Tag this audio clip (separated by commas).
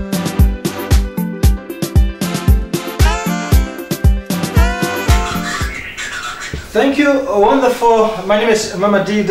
Music, Speech